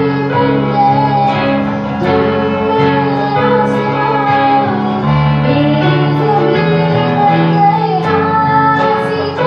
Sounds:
music, guitar, musical instrument

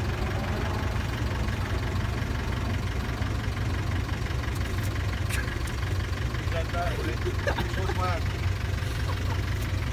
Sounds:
ice cream van

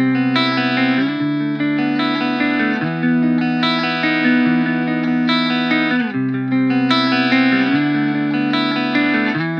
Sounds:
musical instrument, effects unit, guitar, music, electric guitar, plucked string instrument, bass guitar

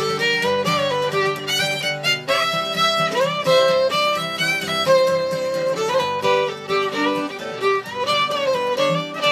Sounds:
musical instrument, fiddle, music

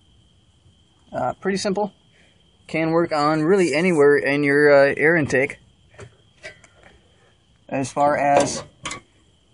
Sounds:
speech

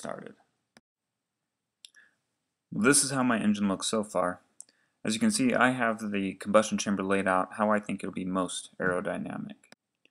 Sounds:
speech, monologue

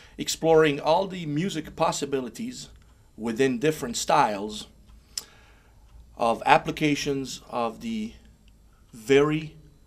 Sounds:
speech

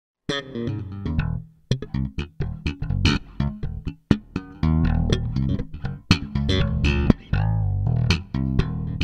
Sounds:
music, bass guitar, musical instrument, playing bass guitar, guitar, plucked string instrument

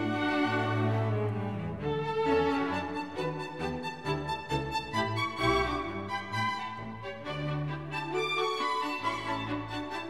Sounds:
music

